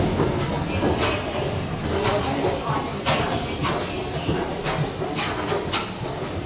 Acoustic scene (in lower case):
subway station